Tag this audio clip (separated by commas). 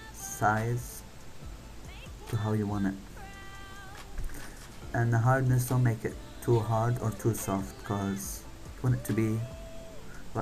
Speech, Music